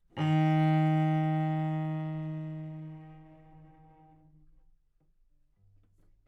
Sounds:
Musical instrument, Music, Bowed string instrument

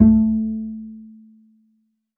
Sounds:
Music, Musical instrument, Bowed string instrument

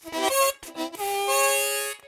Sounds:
Music, Harmonica, Musical instrument

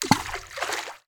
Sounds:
Splash, Water, Liquid

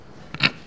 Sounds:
Animal, livestock

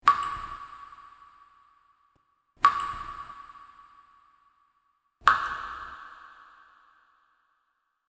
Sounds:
Liquid, Drip, Rain, Water, Raindrop

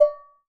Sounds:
dishes, pots and pans, home sounds

